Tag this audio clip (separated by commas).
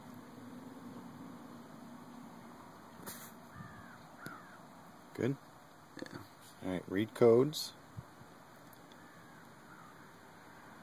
Speech